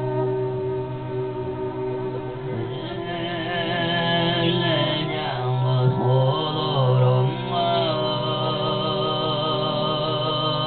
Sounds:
Music, Male singing

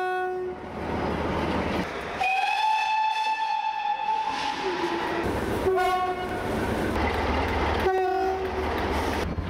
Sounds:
train whistling

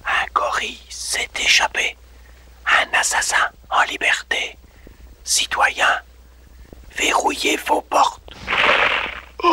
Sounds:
Speech

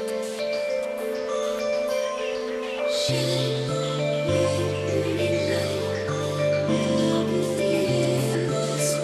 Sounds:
Marimba, Music

